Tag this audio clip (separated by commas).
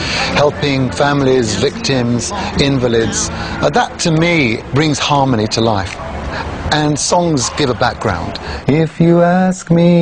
Speech, Music